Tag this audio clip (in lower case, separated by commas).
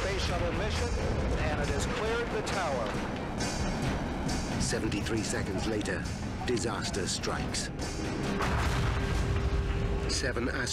music, explosion, speech